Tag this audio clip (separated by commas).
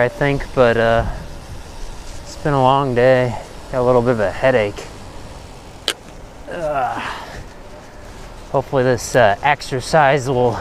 Speech, Vehicle, Bicycle